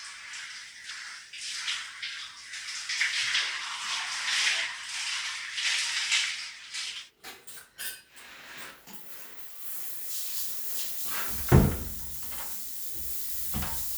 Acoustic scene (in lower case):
restroom